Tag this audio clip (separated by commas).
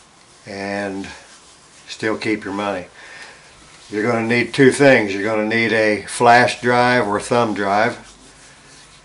Speech